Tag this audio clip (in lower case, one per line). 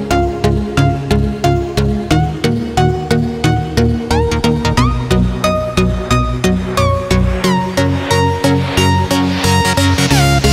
music
independent music